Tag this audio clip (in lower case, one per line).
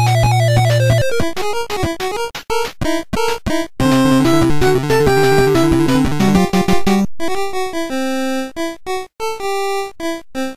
video game music
music